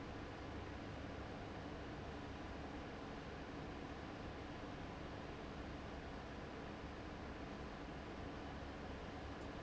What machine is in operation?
fan